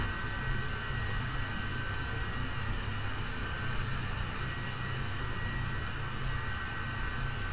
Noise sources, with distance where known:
engine of unclear size, near

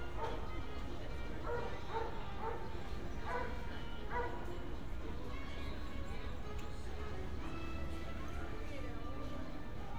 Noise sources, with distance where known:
music from an unclear source, far
dog barking or whining, far

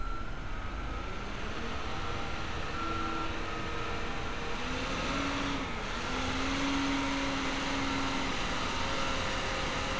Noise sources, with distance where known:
engine of unclear size, near

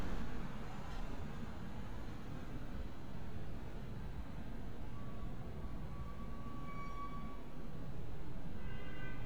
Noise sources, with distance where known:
car horn, far

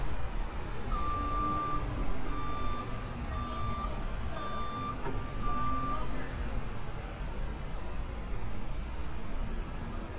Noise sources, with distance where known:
reverse beeper, near
person or small group shouting, far

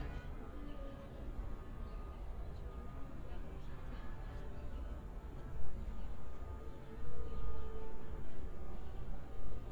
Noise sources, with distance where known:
music from an unclear source, far

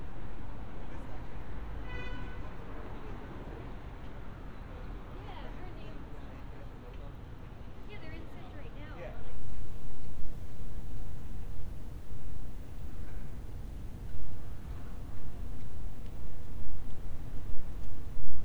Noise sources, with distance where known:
background noise

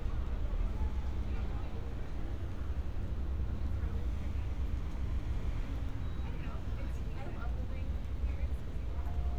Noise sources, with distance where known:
person or small group talking, near

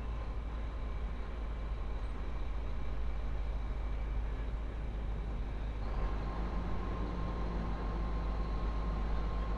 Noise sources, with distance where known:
large-sounding engine, near

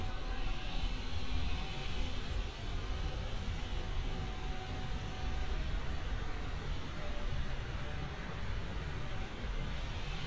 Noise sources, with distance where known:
unidentified powered saw

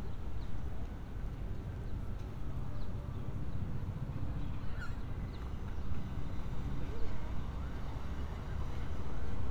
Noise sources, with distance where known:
siren

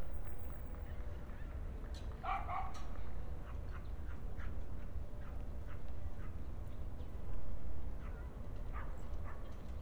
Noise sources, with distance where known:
dog barking or whining, far

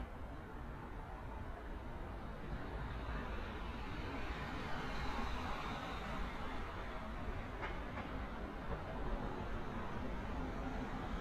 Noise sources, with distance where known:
background noise

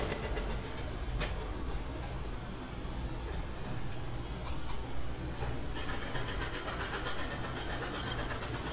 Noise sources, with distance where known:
rock drill, near

